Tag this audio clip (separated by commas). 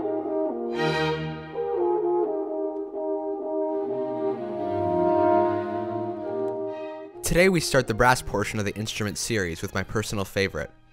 playing french horn